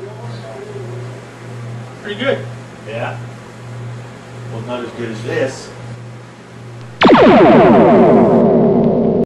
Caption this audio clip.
Two man talks and then a burst happens